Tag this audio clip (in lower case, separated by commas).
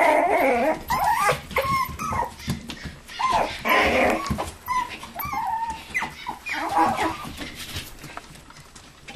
dog, animal, domestic animals